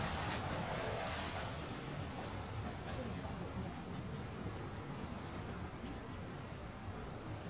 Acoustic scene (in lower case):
residential area